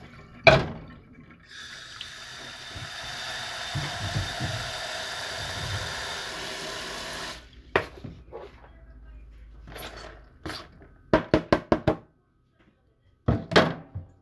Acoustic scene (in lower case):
kitchen